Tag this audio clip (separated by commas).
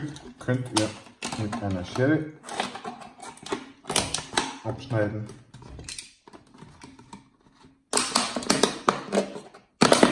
plastic bottle crushing